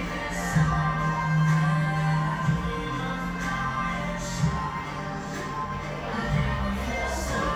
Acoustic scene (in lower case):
cafe